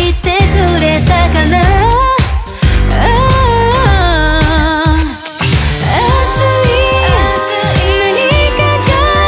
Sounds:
soundtrack music, music

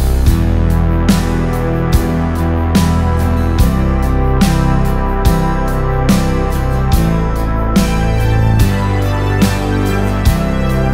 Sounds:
music

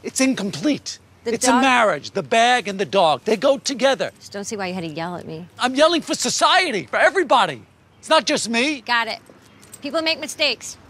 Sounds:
speech

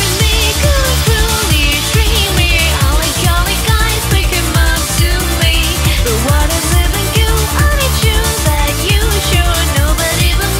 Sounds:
dance music, music

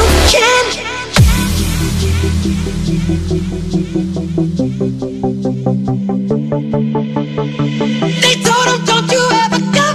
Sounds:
music, dubstep

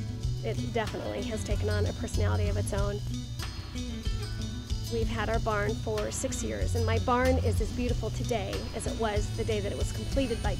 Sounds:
speech, music

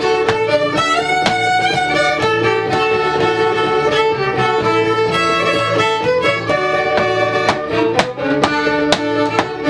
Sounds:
musical instrument, music, violin

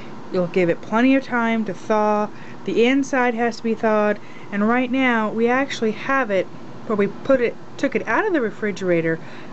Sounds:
speech

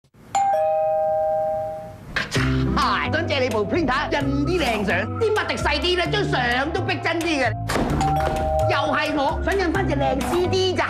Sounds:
speech, music

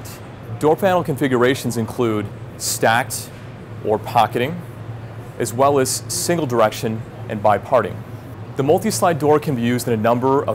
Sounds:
speech

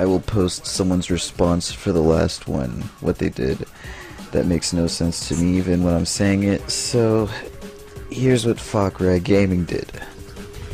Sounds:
speech, music

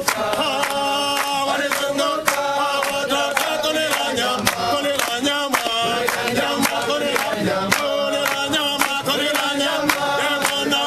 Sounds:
male singing, choir

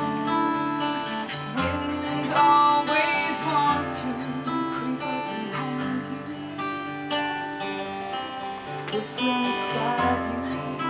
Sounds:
music

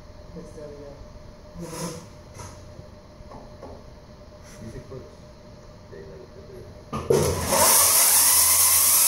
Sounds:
speech, inside a large room or hall

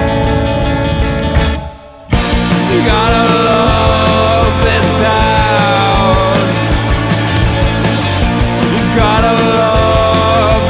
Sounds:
grunge, music, rock music

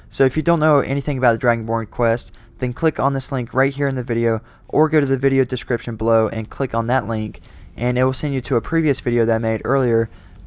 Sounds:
speech

